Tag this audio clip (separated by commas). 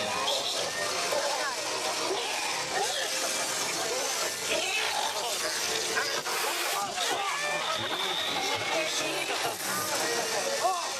Speech, outside, urban or man-made